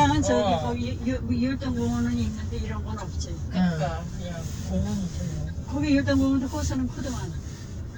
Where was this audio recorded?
in a car